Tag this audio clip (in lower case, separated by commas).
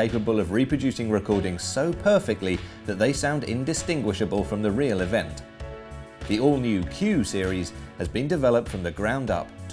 music, speech